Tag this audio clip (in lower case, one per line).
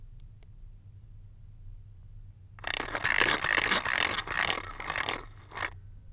mechanisms